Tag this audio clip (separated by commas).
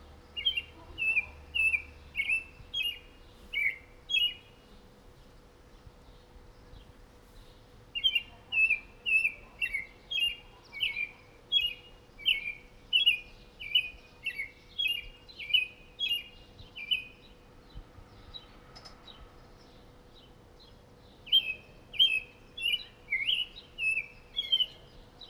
Bird, Animal, bird call, Wild animals